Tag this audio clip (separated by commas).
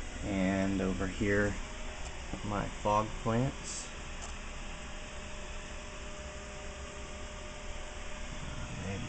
inside a large room or hall, Speech